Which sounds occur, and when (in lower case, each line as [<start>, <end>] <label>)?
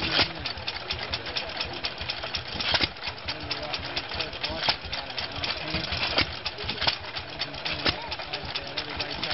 [0.00, 0.26] generic impact sounds
[0.00, 9.33] fill (with liquid)
[0.00, 9.33] speech noise
[0.00, 9.33] mechanisms
[2.45, 2.87] generic impact sounds
[4.53, 4.75] generic impact sounds
[5.36, 6.25] generic impact sounds
[6.61, 6.96] generic impact sounds
[7.53, 7.88] generic impact sounds
[9.00, 9.33] generic impact sounds